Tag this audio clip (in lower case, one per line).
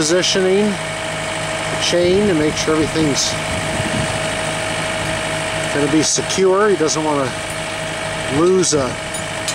speech
vehicle